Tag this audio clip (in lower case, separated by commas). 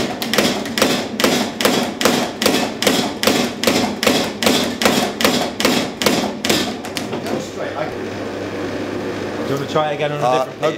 forging swords